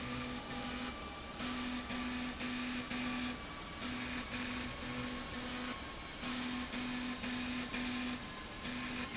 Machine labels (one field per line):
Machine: slide rail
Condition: abnormal